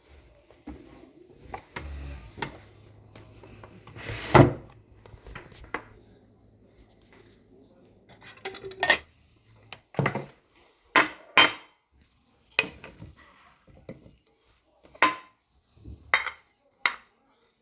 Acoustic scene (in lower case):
kitchen